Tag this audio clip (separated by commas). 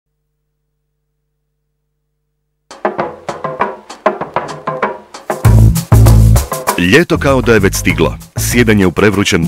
Speech, Music